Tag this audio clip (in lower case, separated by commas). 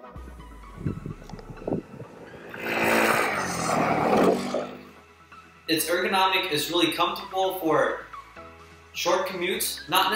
music, vehicle, speech